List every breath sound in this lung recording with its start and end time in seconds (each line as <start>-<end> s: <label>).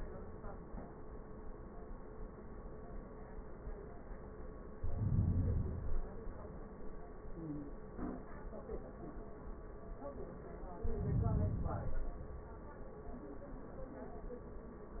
4.71-5.82 s: inhalation
5.84-7.04 s: exhalation
10.74-11.84 s: inhalation
11.83-12.95 s: exhalation